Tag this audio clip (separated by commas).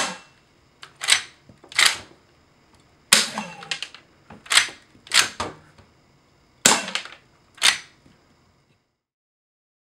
inside a small room